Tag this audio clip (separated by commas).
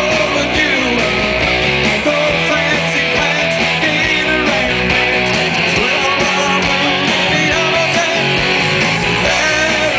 Music, Roll